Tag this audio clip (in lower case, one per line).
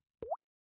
rain
liquid
raindrop
drip
water